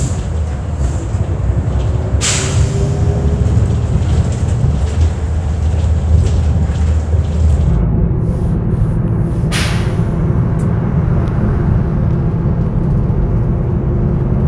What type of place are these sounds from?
bus